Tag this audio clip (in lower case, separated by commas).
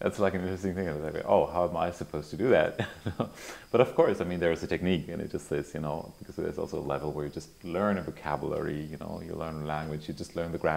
speech